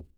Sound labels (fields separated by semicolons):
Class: object falling; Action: being thrown; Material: ceramic